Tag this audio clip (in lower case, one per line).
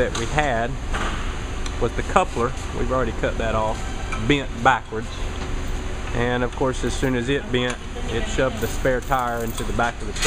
speech